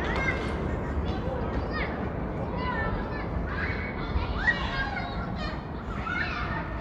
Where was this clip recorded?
in a residential area